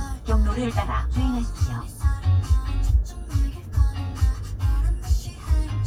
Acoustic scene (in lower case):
car